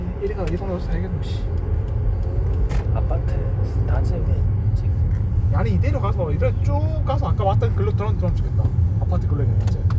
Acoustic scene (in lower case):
car